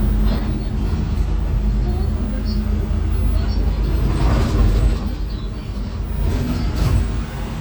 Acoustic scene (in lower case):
bus